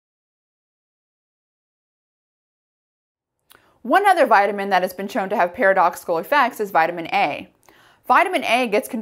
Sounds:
Speech

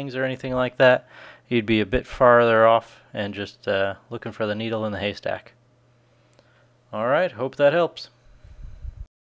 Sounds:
Speech, inside a small room

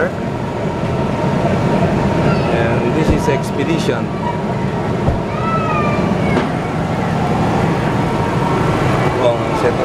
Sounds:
Speech

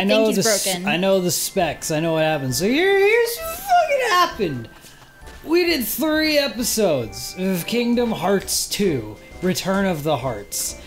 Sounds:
Music, Speech

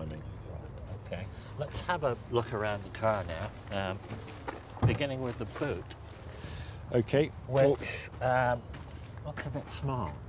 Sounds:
Speech

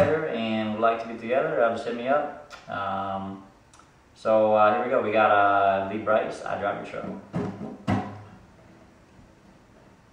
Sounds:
Speech

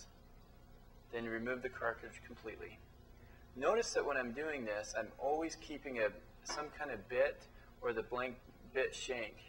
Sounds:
Speech

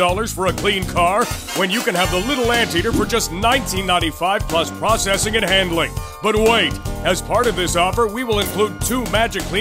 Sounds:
Music, Speech

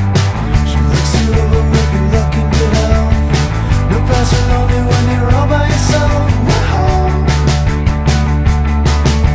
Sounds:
Independent music, Psychedelic rock

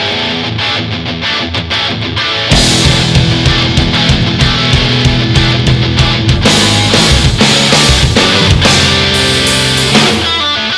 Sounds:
Music

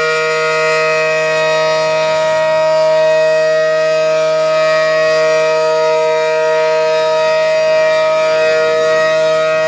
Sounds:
Siren, Civil defense siren

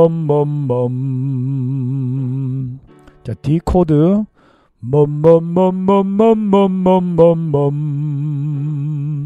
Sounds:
Music, Musical instrument, Speech, Keyboard (musical), Piano

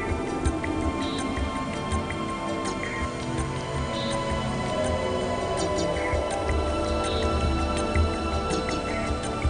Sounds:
Music

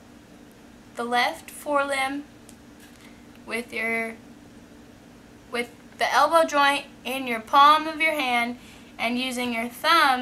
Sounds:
Speech

